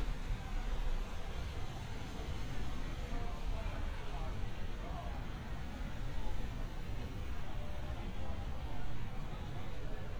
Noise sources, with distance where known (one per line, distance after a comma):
background noise